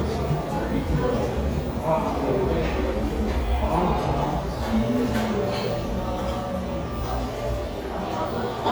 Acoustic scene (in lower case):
cafe